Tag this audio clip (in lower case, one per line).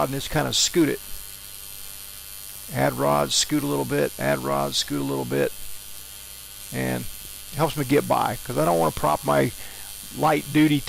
inside a small room
speech